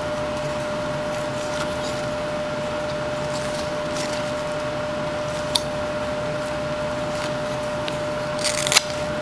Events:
0.0s-9.2s: mechanisms
1.1s-1.2s: scrape
1.4s-2.1s: scrape
2.9s-3.0s: scrape
3.2s-3.7s: scrape
3.8s-4.6s: scrape
5.3s-5.6s: scrape
7.1s-7.7s: scrape
7.9s-7.9s: scrape
8.4s-9.0s: scrape

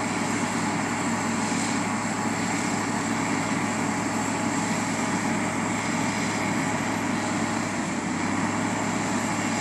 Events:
0.0s-9.6s: truck

